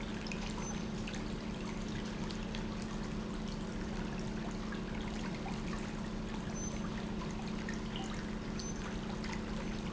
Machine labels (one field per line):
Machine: pump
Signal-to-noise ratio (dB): -6 dB